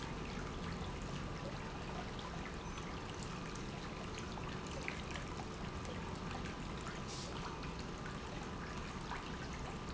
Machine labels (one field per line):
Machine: pump